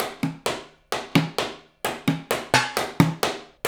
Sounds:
percussion, drum kit, musical instrument, music

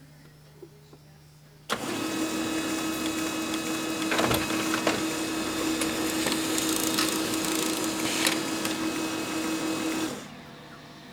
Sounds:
printer, mechanisms

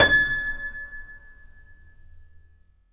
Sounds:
keyboard (musical), piano, musical instrument, music

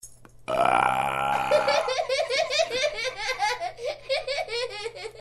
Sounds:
human voice, laughter

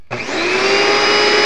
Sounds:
domestic sounds

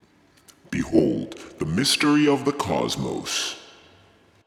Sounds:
speech, human voice, man speaking

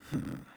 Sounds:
human voice, sigh

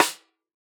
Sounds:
percussion, snare drum, drum, musical instrument, music

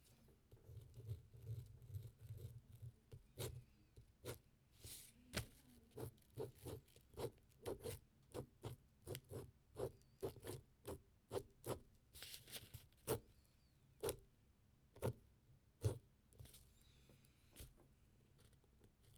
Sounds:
writing, home sounds

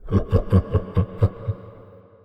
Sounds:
laughter, human voice

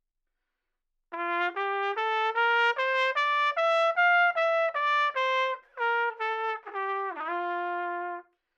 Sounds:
musical instrument, music, brass instrument, trumpet

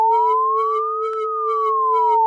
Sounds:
alarm

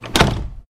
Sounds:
domestic sounds, door, slam

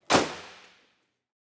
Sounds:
vehicle, motor vehicle (road), car

